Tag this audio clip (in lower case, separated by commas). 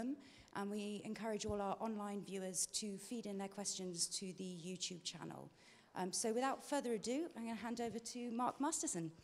speech